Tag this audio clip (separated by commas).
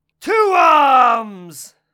Shout, Human voice